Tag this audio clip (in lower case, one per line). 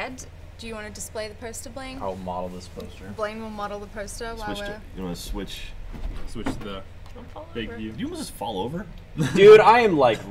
speech